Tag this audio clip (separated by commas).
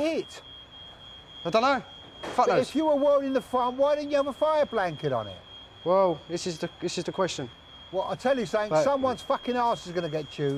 Speech